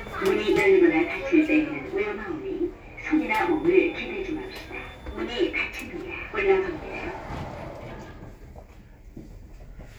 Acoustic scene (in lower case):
elevator